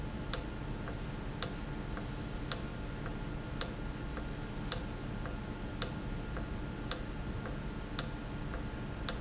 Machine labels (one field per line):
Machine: valve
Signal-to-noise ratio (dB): -6 dB